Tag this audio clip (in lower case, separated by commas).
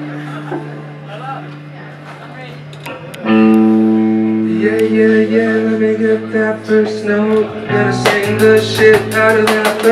speech, music